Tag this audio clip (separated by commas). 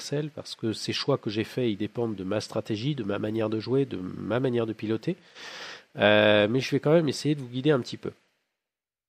Speech